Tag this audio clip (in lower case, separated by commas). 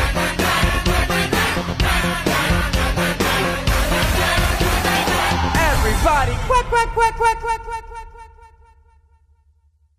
speech, music